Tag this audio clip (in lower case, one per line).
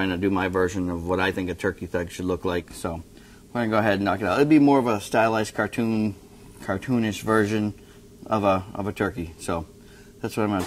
speech